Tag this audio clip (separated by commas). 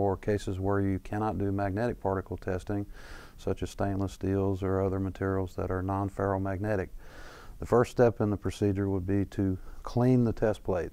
Speech